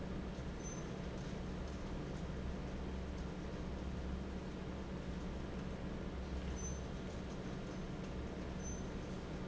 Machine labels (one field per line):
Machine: fan